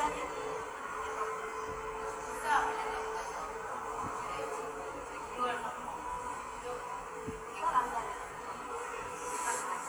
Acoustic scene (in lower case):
subway station